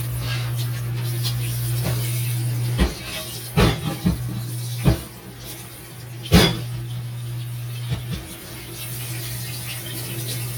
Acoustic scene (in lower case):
kitchen